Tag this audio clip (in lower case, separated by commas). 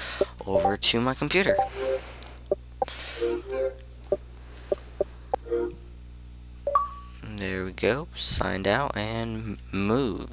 speech